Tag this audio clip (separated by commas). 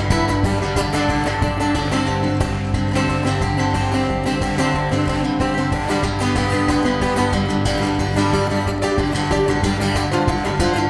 Music